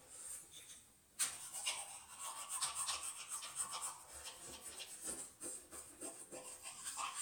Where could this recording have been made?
in a restroom